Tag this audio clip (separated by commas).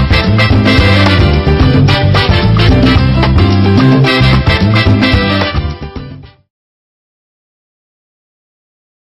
Music